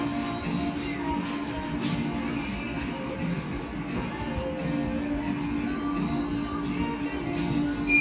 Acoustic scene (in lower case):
cafe